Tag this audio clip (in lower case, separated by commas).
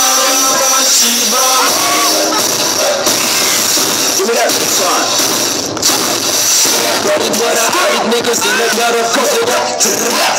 techno, music